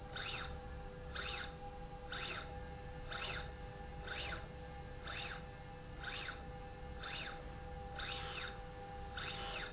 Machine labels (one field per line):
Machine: slide rail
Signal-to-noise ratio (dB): 6 dB